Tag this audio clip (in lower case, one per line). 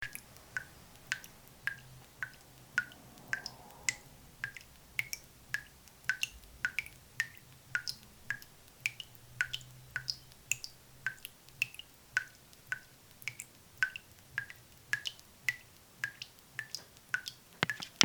liquid
faucet
drip
domestic sounds